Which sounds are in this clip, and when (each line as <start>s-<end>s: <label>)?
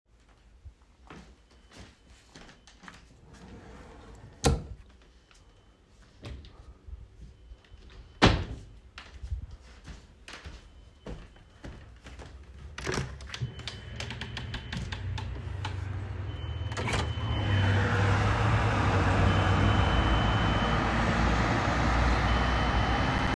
0.9s-3.9s: footsteps
3.1s-4.9s: wardrobe or drawer
8.1s-8.7s: door
8.2s-8.6s: wardrobe or drawer
9.0s-12.8s: footsteps
12.8s-15.7s: window
16.6s-17.7s: window